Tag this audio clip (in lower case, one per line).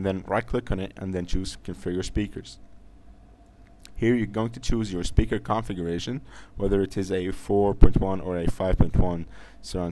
speech